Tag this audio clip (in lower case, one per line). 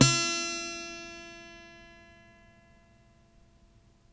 acoustic guitar
musical instrument
guitar
music
plucked string instrument